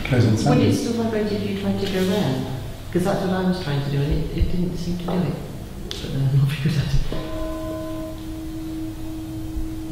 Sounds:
speech

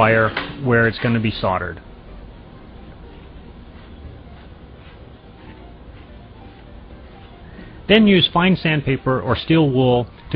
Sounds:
speech, music, narration

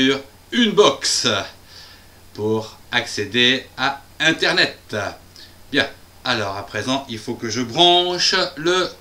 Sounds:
speech

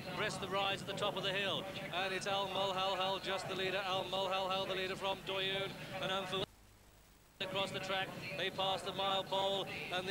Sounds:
speech

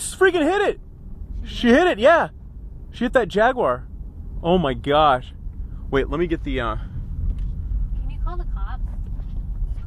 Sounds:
speech, vehicle

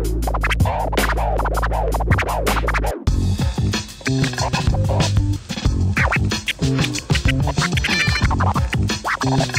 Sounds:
electronic music, hip hop music, music, scratching (performance technique)

